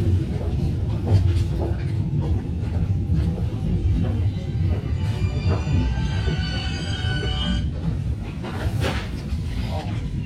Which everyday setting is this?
subway train